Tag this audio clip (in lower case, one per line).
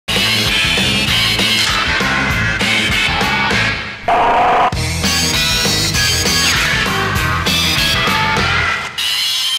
music